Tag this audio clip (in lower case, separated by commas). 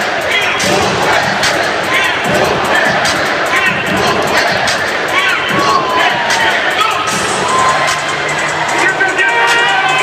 speech, music